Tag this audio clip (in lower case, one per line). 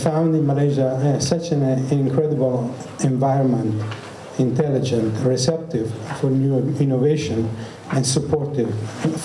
narration
man speaking
speech